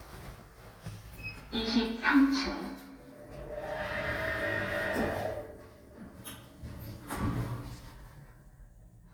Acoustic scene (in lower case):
elevator